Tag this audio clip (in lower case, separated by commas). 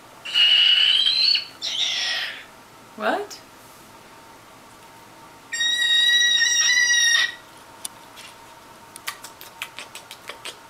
domestic animals, inside a small room, bird, speech